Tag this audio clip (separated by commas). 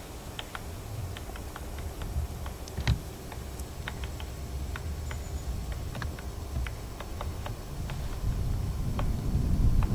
woodpecker pecking tree